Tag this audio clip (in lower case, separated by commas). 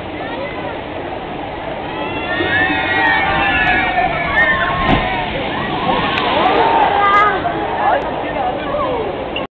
water